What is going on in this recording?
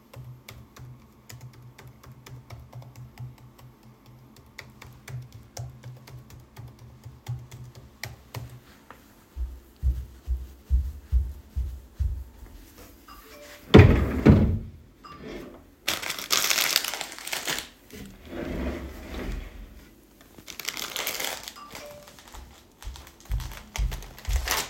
I was typing on my laptop, then got up and walked to the kitchen to get a snack. My phone received a few notifications. I pulled open a drawer, grabbed a packet of cookies and closed it. My phone buzzed again as I walked back to my desk.